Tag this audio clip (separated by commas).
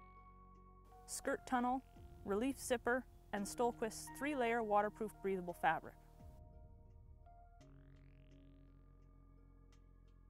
Speech, Music